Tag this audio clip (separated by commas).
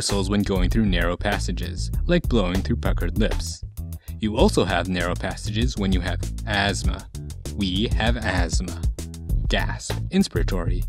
Speech, Music